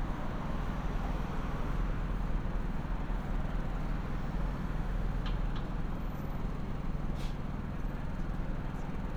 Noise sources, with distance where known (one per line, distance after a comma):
small-sounding engine